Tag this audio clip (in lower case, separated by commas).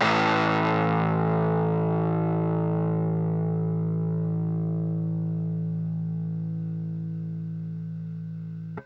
music, musical instrument, guitar, plucked string instrument